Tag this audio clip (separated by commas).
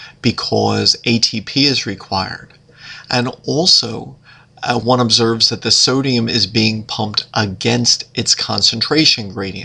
Speech